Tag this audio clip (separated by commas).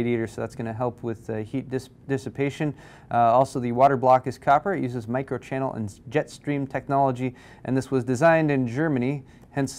Speech